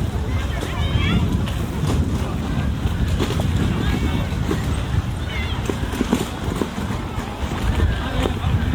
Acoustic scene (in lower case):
park